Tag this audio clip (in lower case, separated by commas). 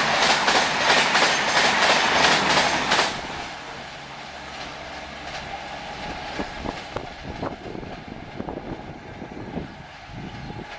train, train wagon, clickety-clack, rail transport